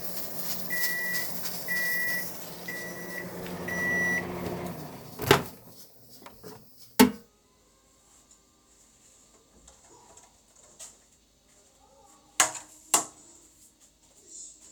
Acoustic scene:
kitchen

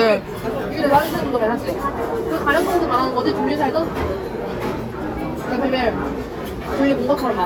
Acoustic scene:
restaurant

